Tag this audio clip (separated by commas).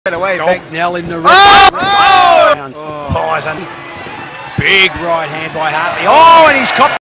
Speech